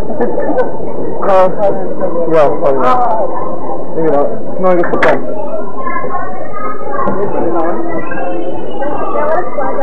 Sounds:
Speech

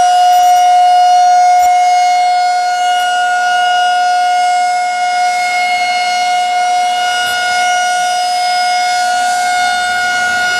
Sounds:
Siren, Civil defense siren

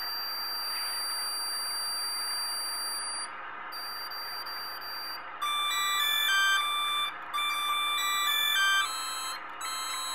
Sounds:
Music

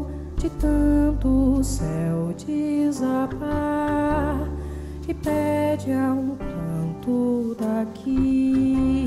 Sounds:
Music

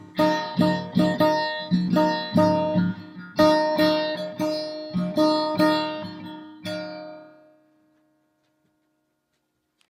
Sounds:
Zither, Guitar

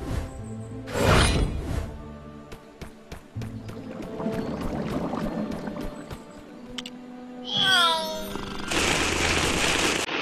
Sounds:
Music

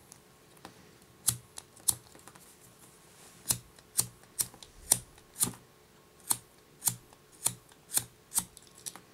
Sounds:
strike lighter

